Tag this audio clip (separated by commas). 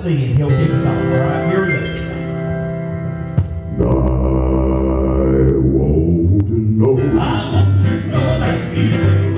Gospel music, Singing